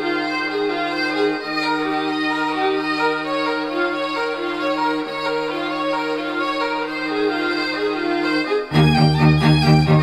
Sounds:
music

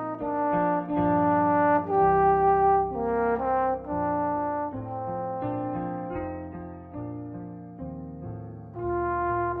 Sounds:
music

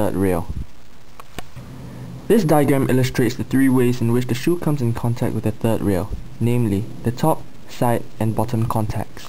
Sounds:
speech

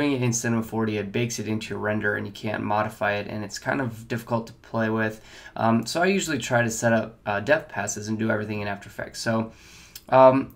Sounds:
speech

